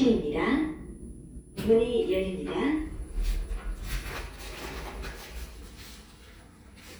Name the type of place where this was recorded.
elevator